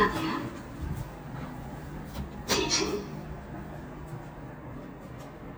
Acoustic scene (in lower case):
elevator